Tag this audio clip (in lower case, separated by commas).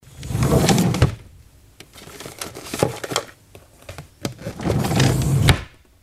domestic sounds, drawer open or close